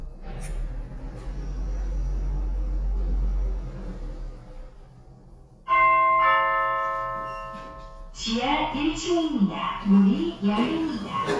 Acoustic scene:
elevator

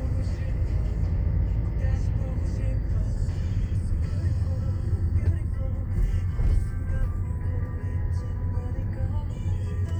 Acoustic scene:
car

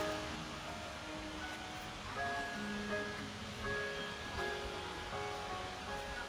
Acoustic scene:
park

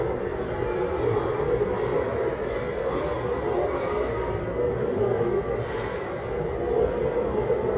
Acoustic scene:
restaurant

